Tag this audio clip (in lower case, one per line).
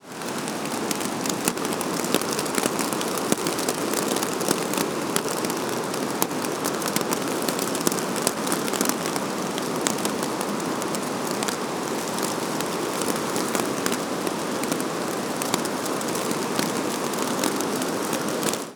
rain
water